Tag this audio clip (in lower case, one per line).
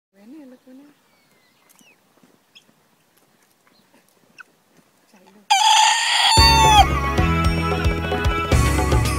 speech
rooster
music
bird
outside, rural or natural